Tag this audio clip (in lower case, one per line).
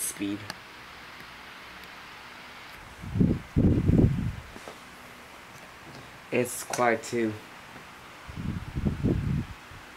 speech